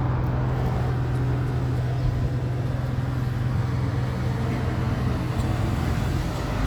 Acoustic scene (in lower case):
street